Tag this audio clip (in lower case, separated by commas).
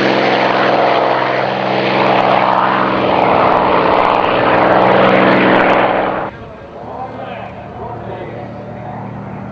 airplane flyby